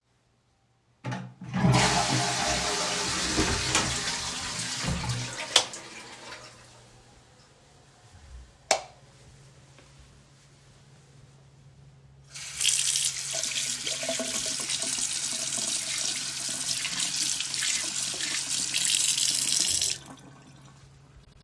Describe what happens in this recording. I flushed the toilet, opened the door and turned off the lights, before turning on the water tap and washing my hands.